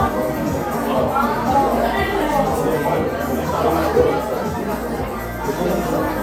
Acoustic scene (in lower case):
crowded indoor space